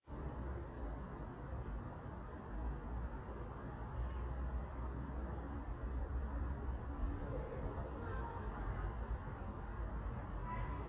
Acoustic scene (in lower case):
residential area